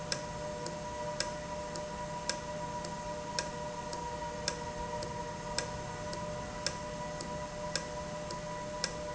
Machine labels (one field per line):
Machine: valve